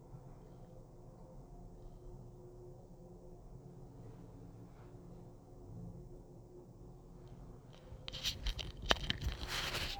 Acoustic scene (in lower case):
elevator